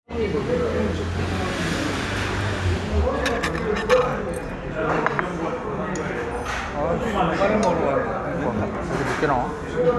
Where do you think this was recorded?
in a crowded indoor space